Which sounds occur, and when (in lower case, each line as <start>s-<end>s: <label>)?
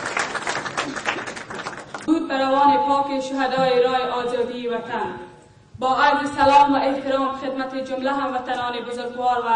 0.0s-2.0s: applause
0.0s-9.5s: background noise
0.8s-1.0s: human voice
2.1s-5.4s: woman speaking
2.5s-3.3s: brief tone
3.5s-3.7s: tap
5.8s-9.5s: woman speaking